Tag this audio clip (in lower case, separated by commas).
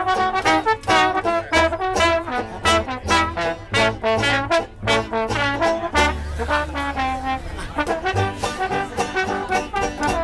music, speech, laughter